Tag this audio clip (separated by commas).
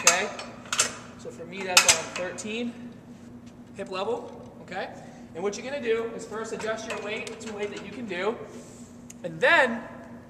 Speech